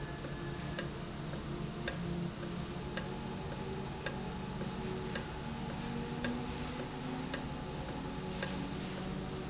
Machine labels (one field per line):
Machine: valve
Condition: normal